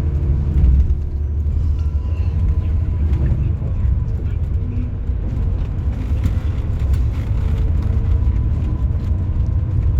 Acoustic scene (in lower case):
car